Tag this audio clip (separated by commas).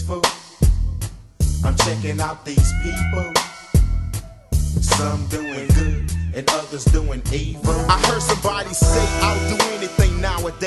Hip hop music, Music